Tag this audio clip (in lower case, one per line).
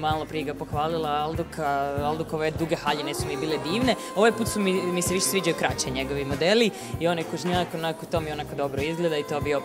speech
music